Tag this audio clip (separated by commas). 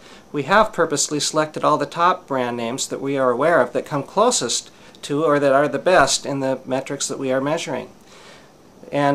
Speech